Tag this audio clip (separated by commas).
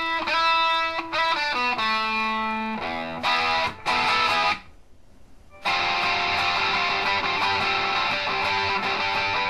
Plucked string instrument, Music, Acoustic guitar, Bass guitar, Strum, Musical instrument, Guitar